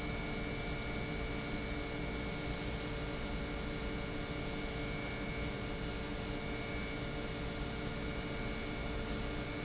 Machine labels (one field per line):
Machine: pump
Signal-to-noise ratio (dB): -6 dB